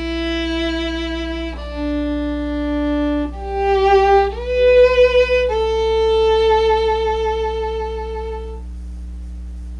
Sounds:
music

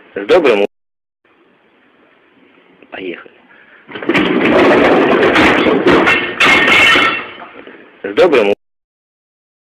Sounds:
speech

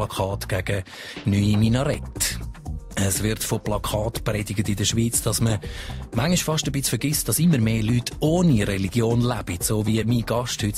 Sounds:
music, speech

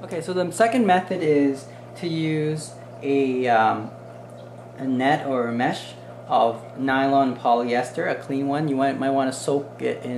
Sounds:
inside a small room, speech

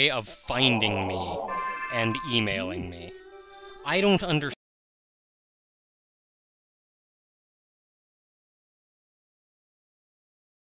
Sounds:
speech

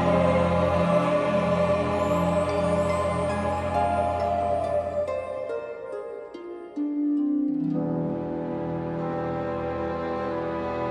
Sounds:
music

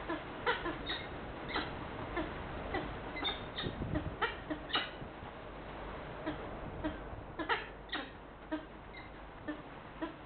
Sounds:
bird, animal

